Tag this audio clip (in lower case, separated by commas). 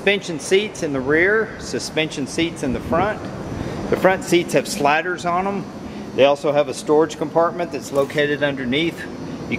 speech